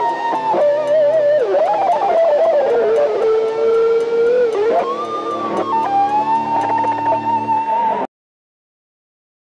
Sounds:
plucked string instrument
acoustic guitar
music
guitar
strum
musical instrument

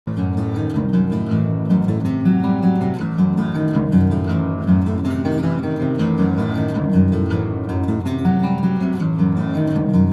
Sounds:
music
musical instrument
acoustic guitar
playing acoustic guitar
guitar
plucked string instrument

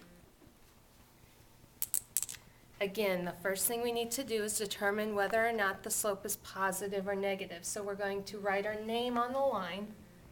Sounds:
speech
inside a small room

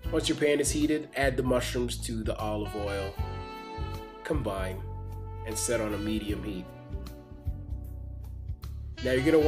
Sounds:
music
speech

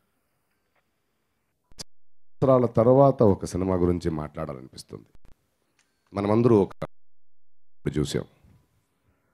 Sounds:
monologue
speech
male speech

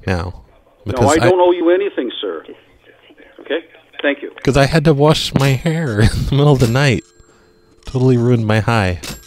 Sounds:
speech

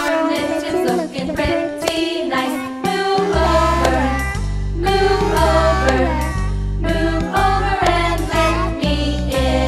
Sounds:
music
inside a large room or hall
choir

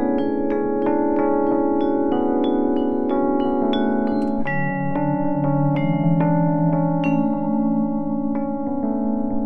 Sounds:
music

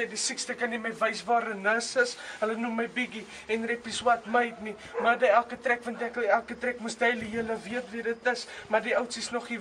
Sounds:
speech

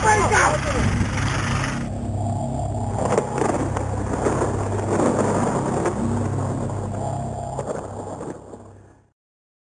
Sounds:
speech
music

